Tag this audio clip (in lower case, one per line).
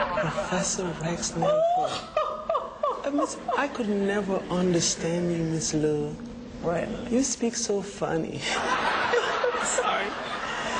speech